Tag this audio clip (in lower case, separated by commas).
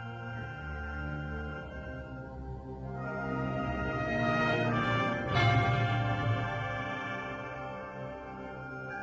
music